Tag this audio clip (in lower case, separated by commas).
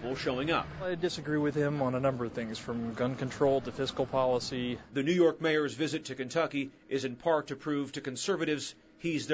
speech